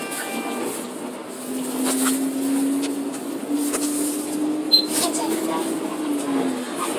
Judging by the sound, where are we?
on a bus